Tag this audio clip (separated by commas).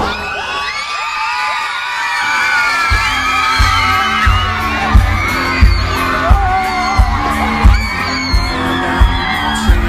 Crowd, Music, Bang